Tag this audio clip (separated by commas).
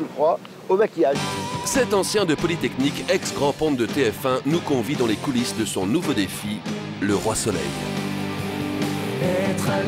Speech, Music